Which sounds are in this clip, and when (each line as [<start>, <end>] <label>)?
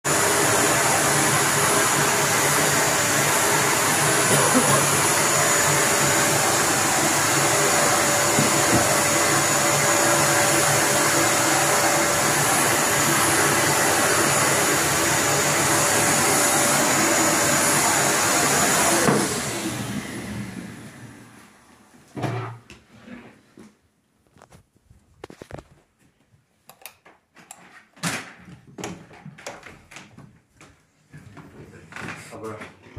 [0.00, 22.09] vacuum cleaner
[22.15, 23.79] wardrobe or drawer
[26.61, 26.99] light switch
[27.94, 28.32] door
[28.78, 31.83] footsteps